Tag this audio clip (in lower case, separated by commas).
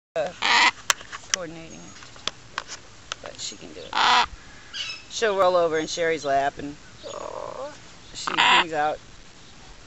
speech, outside, rural or natural, bird, pets